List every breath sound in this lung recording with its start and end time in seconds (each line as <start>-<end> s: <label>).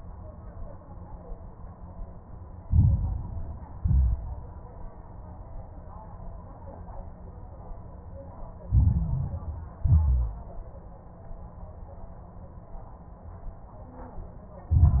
2.64-3.76 s: inhalation
2.64-3.76 s: crackles
3.80-4.38 s: exhalation
3.80-4.38 s: crackles
8.68-9.80 s: inhalation
8.68-9.80 s: crackles
9.82-10.40 s: exhalation
9.82-10.40 s: crackles
14.69-15.00 s: inhalation
14.69-15.00 s: crackles